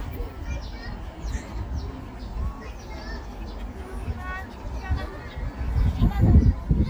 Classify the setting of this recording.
park